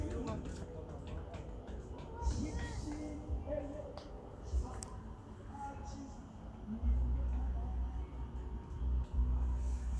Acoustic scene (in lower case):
park